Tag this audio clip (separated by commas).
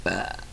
Burping